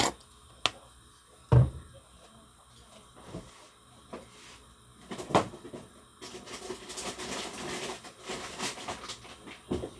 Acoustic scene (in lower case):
kitchen